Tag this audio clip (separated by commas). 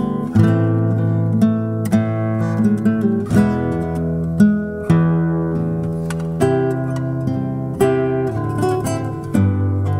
Music, Guitar